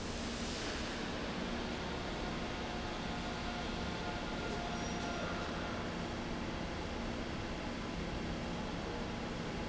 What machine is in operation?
fan